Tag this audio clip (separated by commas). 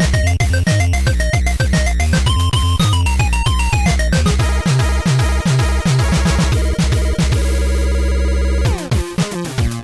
Music, Theme music